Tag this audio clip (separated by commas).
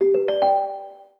Ringtone, Telephone, Alarm